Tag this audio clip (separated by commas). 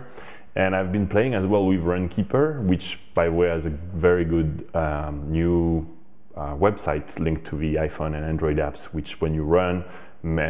Speech